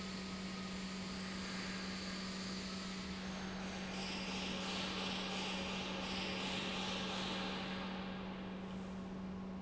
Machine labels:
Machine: pump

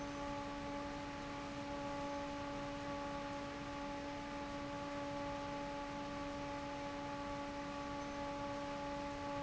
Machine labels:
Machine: fan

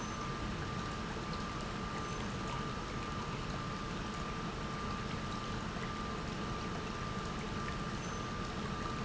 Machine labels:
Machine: pump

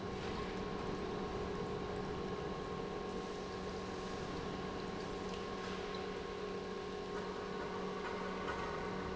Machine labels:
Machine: pump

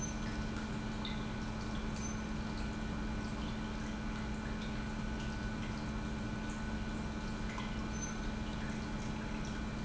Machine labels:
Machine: pump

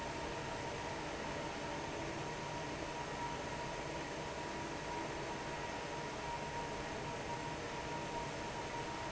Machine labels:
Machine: fan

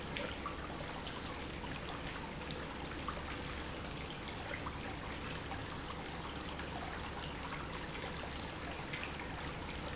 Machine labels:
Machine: pump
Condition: normal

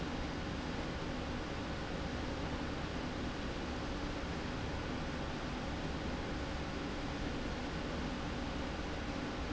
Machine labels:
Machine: slide rail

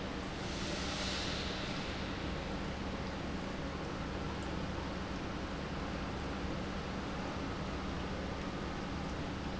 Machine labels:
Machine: pump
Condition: normal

